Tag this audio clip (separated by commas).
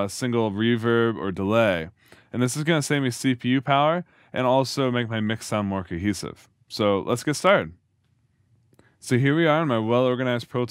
Speech